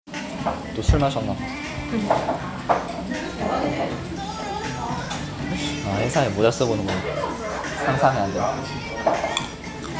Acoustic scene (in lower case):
restaurant